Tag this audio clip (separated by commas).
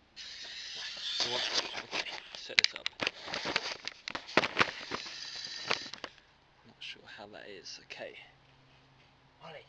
Speech